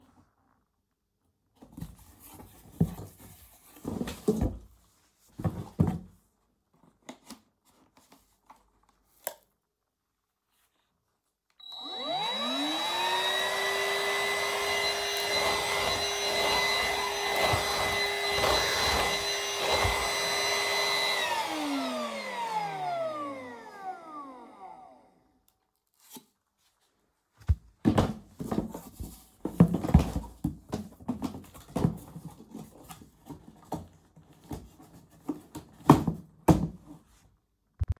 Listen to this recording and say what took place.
i opened the box of the vacuum cleaner and took the machine out. Then I set up the vacuum cleaner and started it to clean the floor. After finishing the cleaning I turned the vacuum cleaner off placed it back into the box and packed it again.